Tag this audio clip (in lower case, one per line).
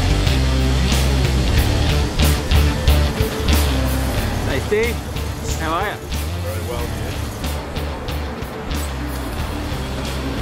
music
speech